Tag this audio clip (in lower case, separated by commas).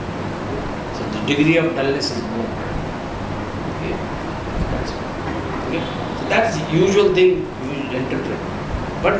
speech